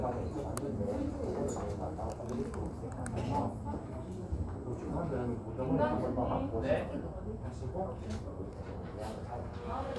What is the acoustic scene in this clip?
crowded indoor space